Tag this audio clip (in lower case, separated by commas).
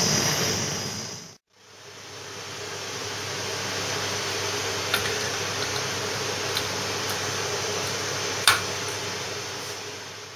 inside a small room